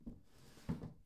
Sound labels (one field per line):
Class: drawer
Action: closing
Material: wooden